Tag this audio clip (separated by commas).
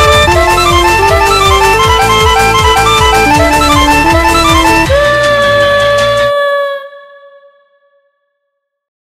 Music